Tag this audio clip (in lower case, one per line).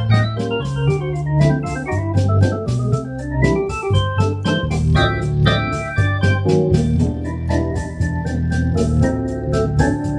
hammond organ
playing hammond organ
music
keyboard (musical)
musical instrument
piano